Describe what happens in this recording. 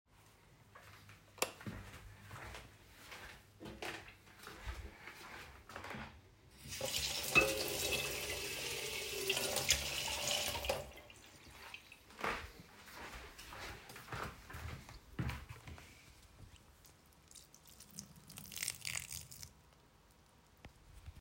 I walked into the room and turned on the light. I picked up a watering pot and filled it with water at the sink. Then I walked to the plants and watered them.